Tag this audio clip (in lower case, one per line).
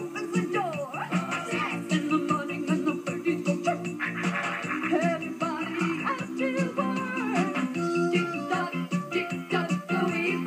music